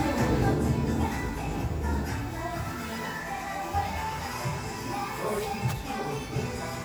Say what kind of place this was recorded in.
crowded indoor space